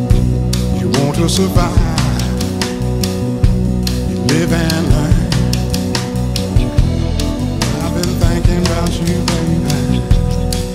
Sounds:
music

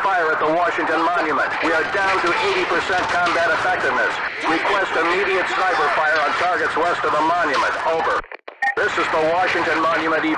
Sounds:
police radio chatter

